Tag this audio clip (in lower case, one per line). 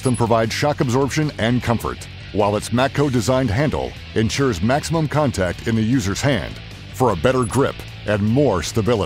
music
speech